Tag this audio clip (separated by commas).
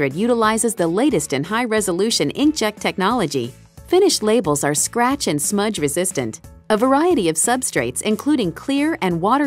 Speech, Music